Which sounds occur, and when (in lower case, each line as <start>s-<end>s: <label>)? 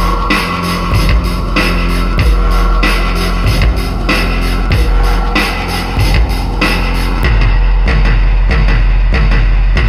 0.0s-9.8s: music